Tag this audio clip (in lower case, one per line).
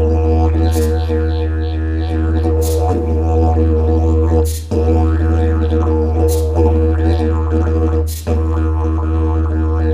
playing didgeridoo